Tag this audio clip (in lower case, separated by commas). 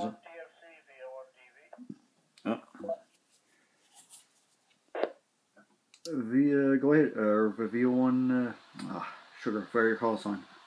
radio, speech, inside a small room